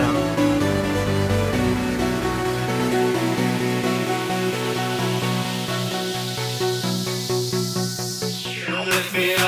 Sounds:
music

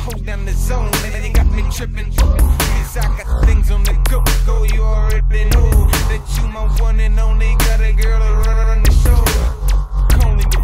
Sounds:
dubstep
music

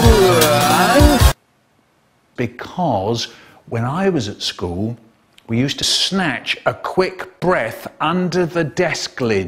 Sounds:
music
speech

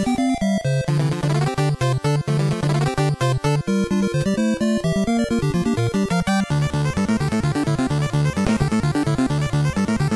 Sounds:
video game music
music

